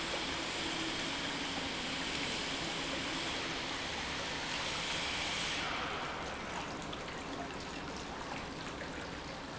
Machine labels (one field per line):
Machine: pump